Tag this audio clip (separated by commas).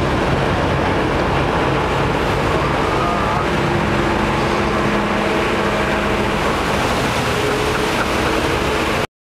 speedboat, Boat, Vehicle